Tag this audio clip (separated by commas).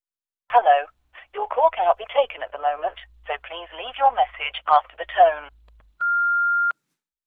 Alarm, Telephone